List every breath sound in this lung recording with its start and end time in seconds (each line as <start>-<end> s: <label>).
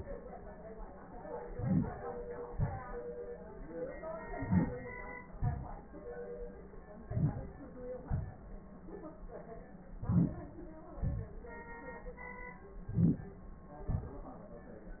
1.35-2.05 s: inhalation
2.49-3.06 s: exhalation
4.38-4.95 s: inhalation
5.33-5.79 s: exhalation
7.04-7.57 s: inhalation
8.14-8.67 s: exhalation
10.07-10.68 s: inhalation
10.97-11.39 s: exhalation
12.88-13.30 s: inhalation
13.87-14.29 s: exhalation